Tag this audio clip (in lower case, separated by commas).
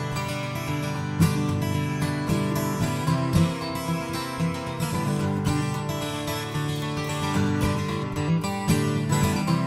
musical instrument, strum, music, acoustic guitar, plucked string instrument, guitar